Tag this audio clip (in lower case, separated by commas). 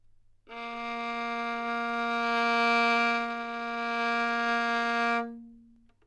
music, bowed string instrument, musical instrument